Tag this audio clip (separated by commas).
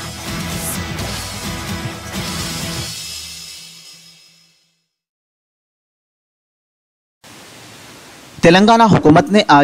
Pink noise